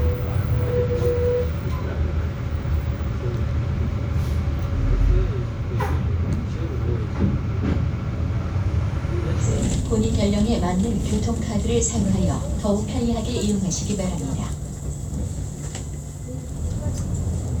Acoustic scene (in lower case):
bus